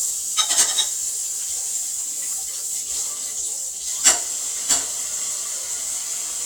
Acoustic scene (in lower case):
kitchen